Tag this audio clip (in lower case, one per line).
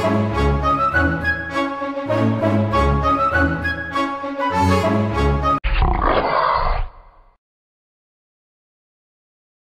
music